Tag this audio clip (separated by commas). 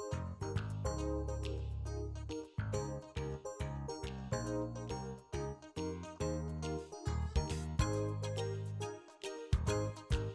Jingle